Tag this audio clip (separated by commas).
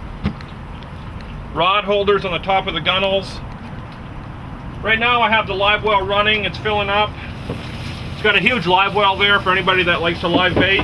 Speech